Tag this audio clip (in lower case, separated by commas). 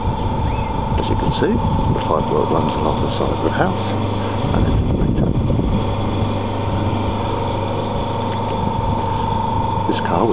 car, speech, vehicle